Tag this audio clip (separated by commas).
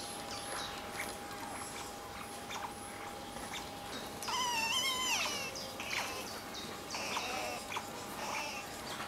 otter growling